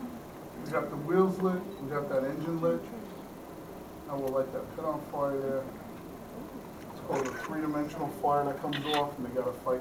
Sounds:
Speech

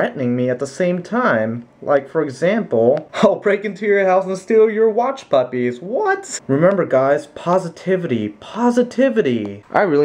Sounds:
Speech

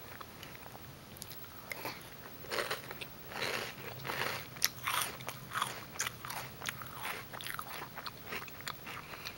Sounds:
Chewing, Biting

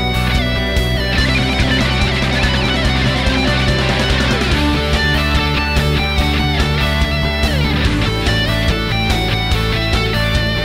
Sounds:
Musical instrument, Guitar, Plucked string instrument, Electric guitar, Music

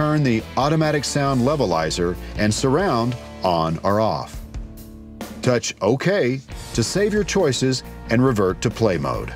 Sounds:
Speech, Music

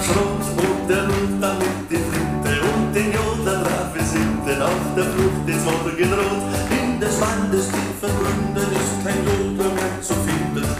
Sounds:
yodelling

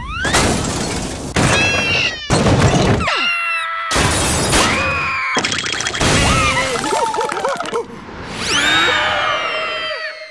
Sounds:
outside, rural or natural

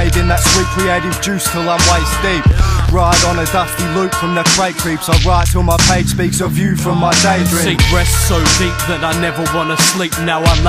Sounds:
Music

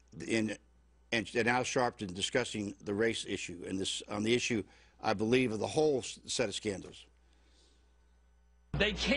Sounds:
Speech

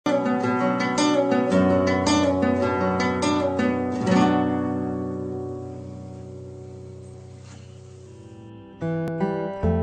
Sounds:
Pizzicato, Zither

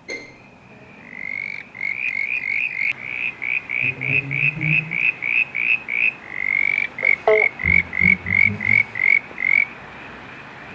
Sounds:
frog croaking

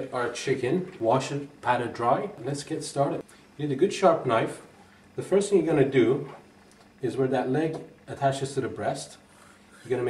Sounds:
Speech

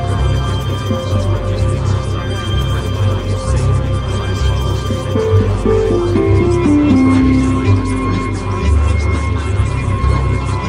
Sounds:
Music

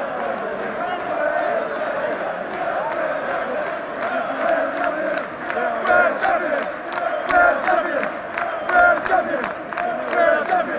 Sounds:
Speech

